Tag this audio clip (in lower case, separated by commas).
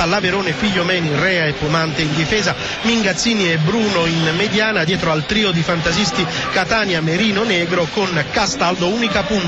music, speech